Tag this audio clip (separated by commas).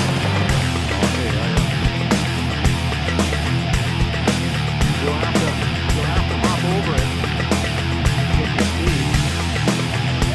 Speech, Music